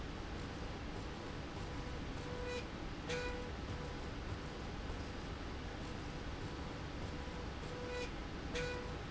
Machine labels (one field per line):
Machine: slide rail